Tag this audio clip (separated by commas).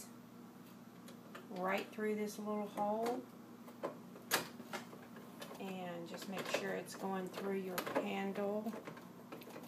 Door, Speech